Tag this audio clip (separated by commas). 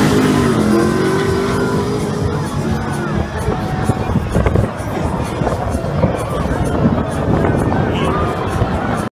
Vehicle, Speech, Music, Car, Race car